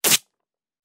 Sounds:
home sounds

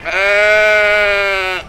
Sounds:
Animal, livestock

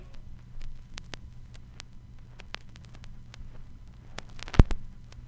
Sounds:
Crackle

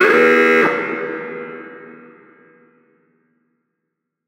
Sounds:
Alarm

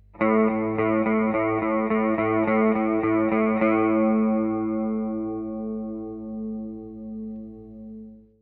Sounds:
Musical instrument, Music, Guitar, Plucked string instrument, Electric guitar

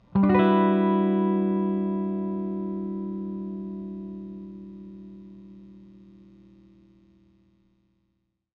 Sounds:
Electric guitar, Strum, Guitar, Musical instrument, Music, Plucked string instrument

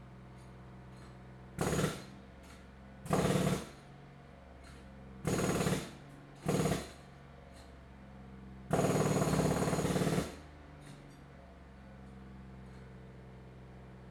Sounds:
Tools

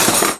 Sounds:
Domestic sounds, silverware

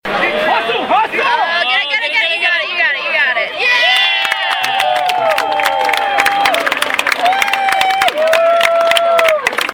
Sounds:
Shout, Human voice, Yell

